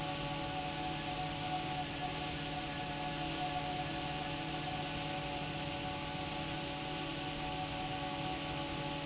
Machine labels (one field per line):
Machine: fan